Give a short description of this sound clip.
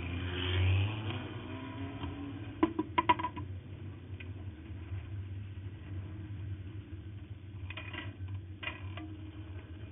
Car engine passing, clattering